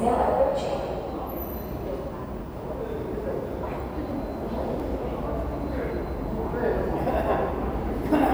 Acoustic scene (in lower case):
subway station